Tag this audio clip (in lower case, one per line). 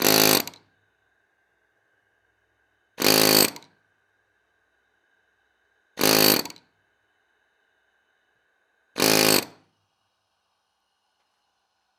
tools